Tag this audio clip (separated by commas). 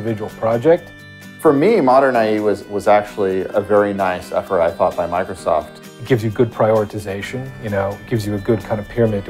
Music, Speech